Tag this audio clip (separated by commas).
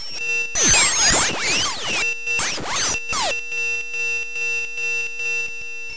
Squeak